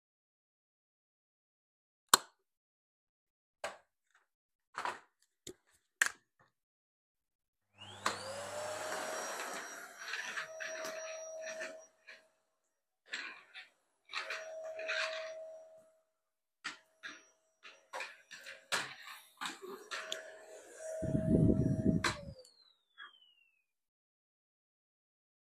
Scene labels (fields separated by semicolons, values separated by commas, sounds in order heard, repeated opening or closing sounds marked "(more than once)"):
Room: bedroom; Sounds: light switch, vacuum cleaner